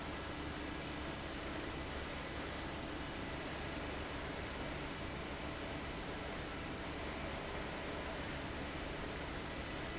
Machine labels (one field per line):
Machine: fan